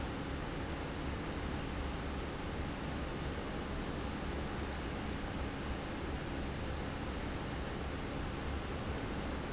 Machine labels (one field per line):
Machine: fan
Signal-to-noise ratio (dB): -6 dB